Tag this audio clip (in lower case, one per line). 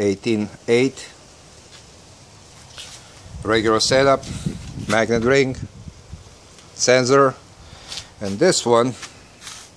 outside, urban or man-made
speech